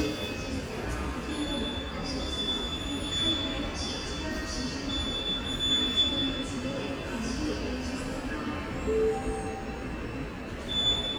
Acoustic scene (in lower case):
subway station